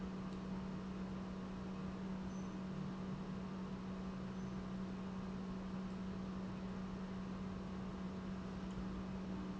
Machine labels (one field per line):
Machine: pump